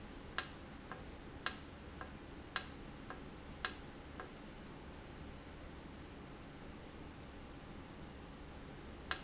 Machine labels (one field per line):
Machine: valve